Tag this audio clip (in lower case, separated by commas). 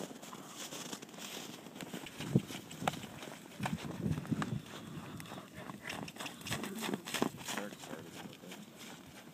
speech